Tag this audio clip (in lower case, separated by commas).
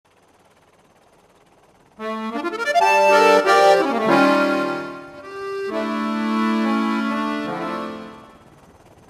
music, organ